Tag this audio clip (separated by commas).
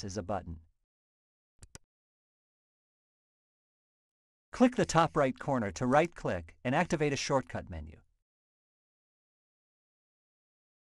Speech